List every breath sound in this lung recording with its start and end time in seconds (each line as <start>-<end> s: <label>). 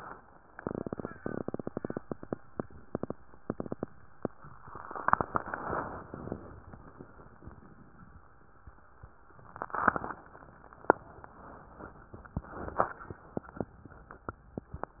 4.79-6.52 s: inhalation